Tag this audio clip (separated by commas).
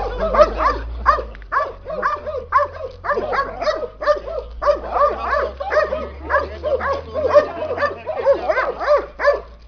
Dog, Animal, Speech, Domestic animals